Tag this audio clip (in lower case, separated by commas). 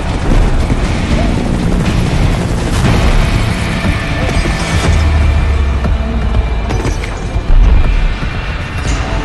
music, vehicle